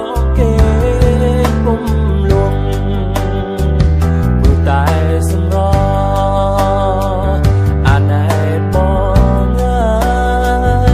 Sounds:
acoustic guitar
music
plucked string instrument
musical instrument
guitar

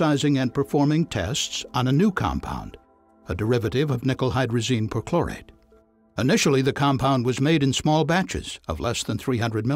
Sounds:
speech

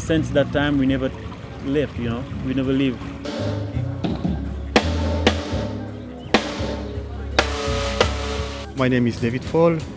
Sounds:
speech
music

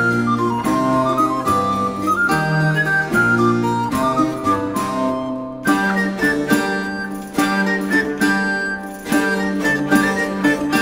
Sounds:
music

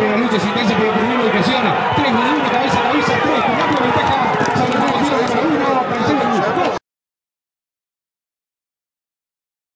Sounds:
speech

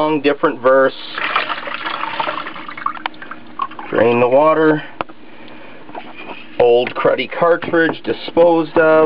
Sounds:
speech
water

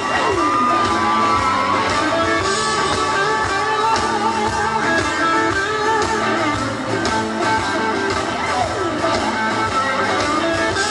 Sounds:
music

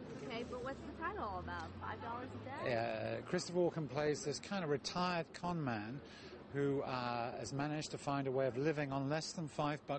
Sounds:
speech

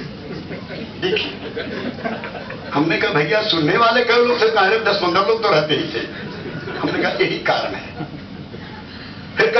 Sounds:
speech

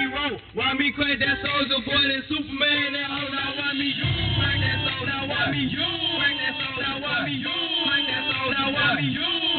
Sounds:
music

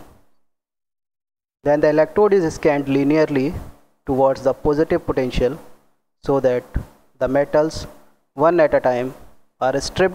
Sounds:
speech

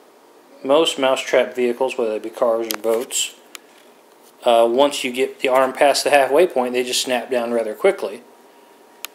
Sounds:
speech

